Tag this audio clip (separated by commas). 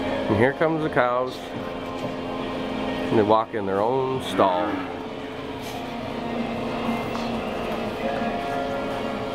Speech